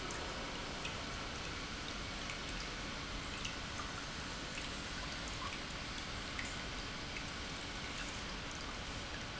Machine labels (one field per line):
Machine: pump